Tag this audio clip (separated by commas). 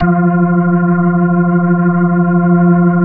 Organ, Music, Musical instrument, Keyboard (musical)